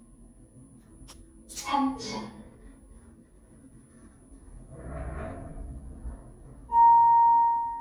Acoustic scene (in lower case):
elevator